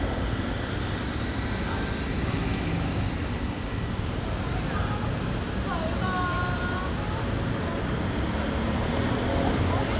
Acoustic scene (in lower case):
street